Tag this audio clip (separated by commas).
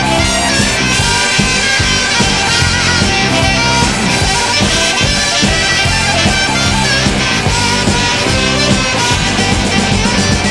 Punk rock, Music